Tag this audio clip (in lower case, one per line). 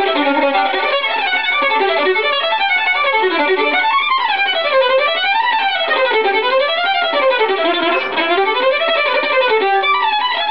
musical instrument
music
violin